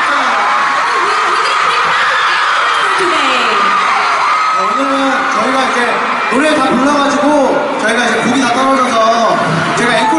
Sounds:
Speech

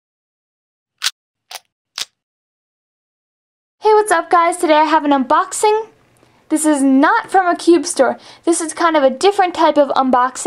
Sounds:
Speech

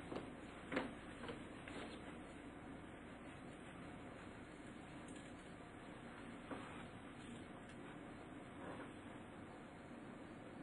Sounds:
inside a small room

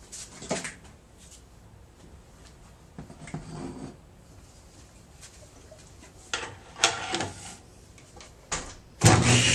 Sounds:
Tools, Power tool

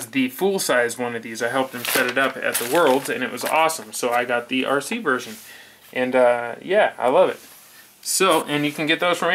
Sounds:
Speech, inside a small room

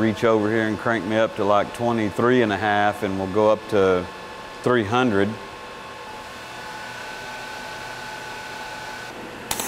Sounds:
arc welding

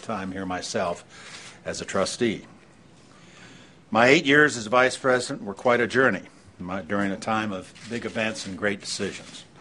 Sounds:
Narration, man speaking, Speech

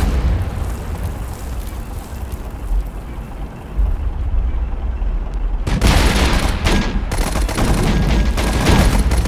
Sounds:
Fusillade

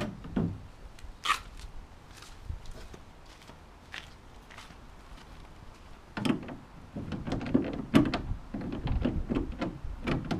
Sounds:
rowboat

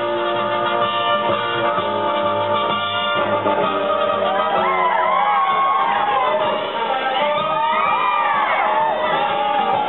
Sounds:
Whoop, Music

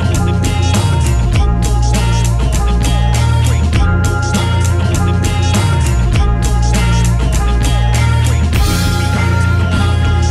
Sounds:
Music

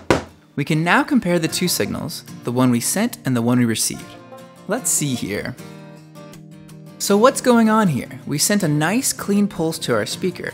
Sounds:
Speech, Music

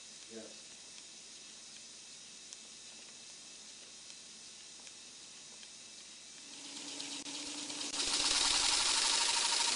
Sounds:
Engine, Speech

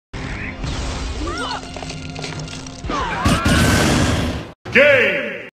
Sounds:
crash

